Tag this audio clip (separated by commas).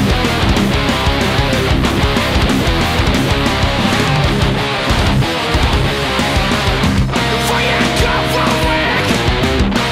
Music, Bass guitar, Electric guitar, Plucked string instrument, Musical instrument, Guitar